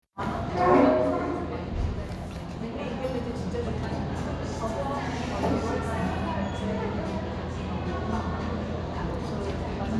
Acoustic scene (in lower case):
cafe